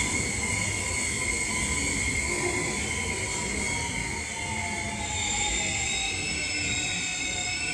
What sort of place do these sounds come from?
subway station